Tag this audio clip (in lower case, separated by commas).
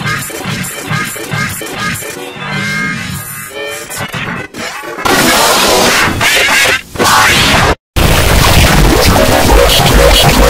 music